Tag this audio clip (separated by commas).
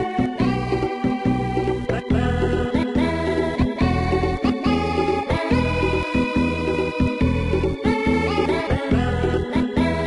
Video game music, Music